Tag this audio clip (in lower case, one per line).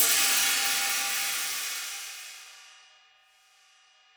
musical instrument
cymbal
music
percussion
hi-hat